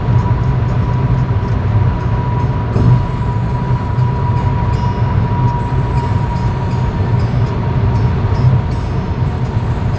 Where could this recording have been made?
in a car